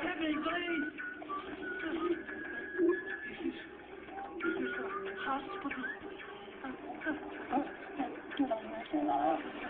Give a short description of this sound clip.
Muffled sounds of a television show with someone whistles and garbled speech